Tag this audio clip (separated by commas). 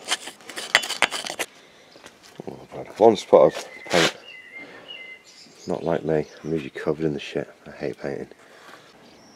Speech